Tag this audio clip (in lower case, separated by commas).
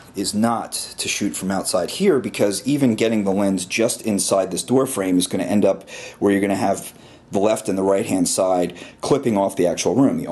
speech